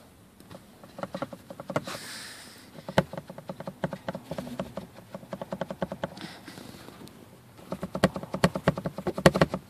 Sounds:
Rattle

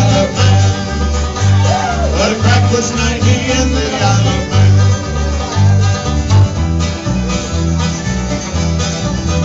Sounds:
Singing, Bluegrass, Music

